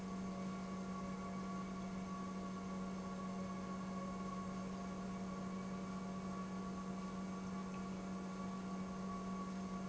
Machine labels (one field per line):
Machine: pump